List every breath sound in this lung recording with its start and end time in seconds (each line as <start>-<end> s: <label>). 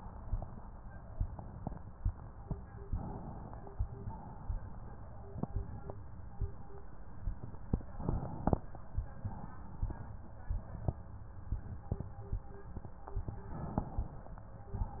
2.83-4.01 s: inhalation
4.05-5.44 s: exhalation
7.96-9.14 s: inhalation
9.12-10.52 s: exhalation
13.48-14.76 s: inhalation
14.76-15.00 s: exhalation